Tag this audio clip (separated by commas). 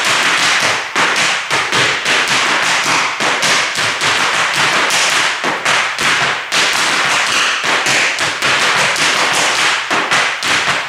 Tap